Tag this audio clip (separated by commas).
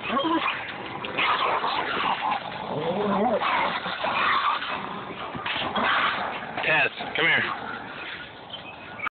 Bow-wow, Yip, pets, Speech, Dog, Animal, Whimper (dog)